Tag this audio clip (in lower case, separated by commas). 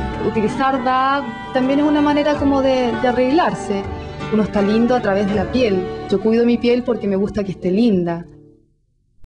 music, speech